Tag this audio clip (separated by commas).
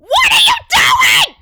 Yell, Shout, Human voice